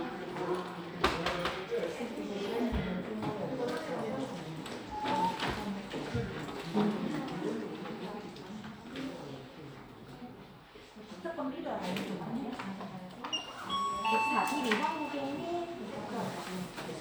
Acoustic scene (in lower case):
crowded indoor space